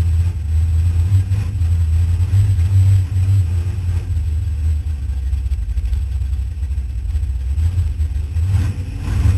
The revving sound of a car engine